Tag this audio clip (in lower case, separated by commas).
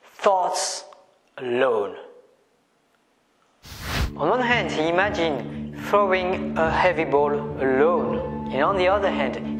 speech, music